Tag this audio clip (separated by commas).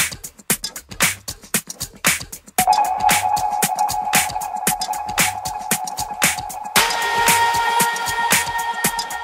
Music, House music